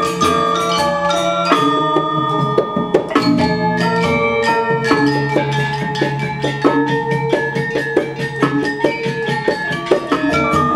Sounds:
classical music
music

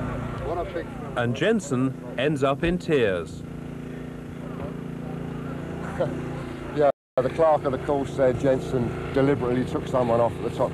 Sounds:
speech

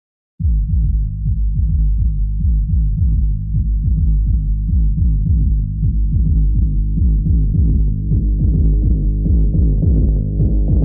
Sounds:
music

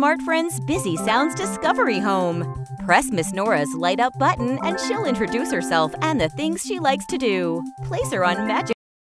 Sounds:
speech
music

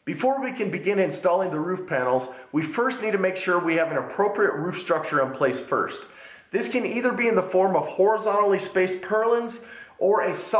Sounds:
speech

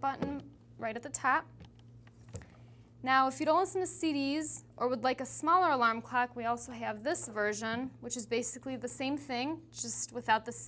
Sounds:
speech

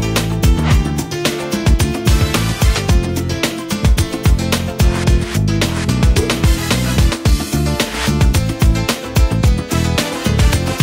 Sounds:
music

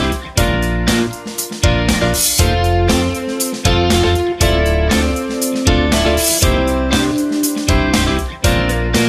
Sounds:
music

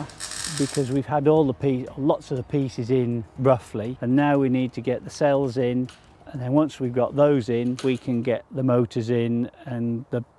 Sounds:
speech

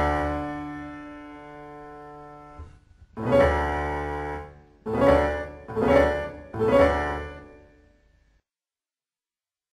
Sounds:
music

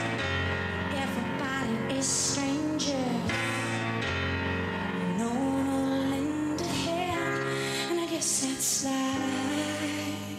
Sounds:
music

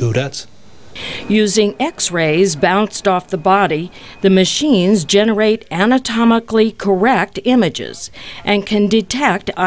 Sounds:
speech

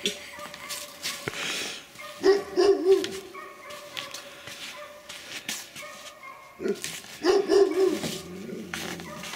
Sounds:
outside, rural or natural
animal

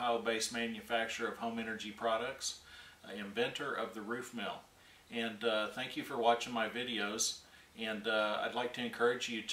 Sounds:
speech

